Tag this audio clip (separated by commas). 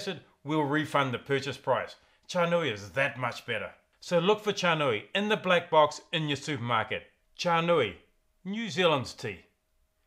Speech